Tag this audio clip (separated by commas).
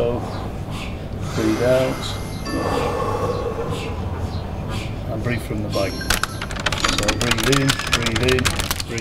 Computer keyboard, Typing